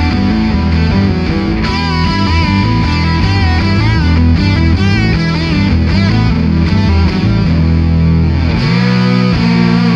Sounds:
guitar, effects unit, distortion, music, heavy metal

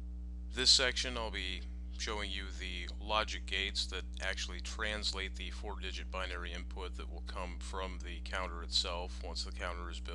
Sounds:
speech

